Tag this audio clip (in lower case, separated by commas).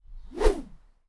whoosh